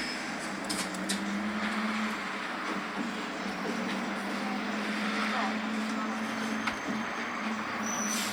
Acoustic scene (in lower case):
bus